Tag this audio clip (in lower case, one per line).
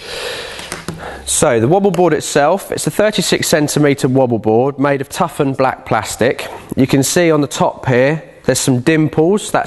speech